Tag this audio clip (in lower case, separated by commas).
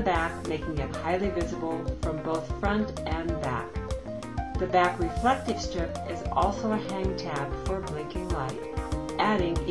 music, speech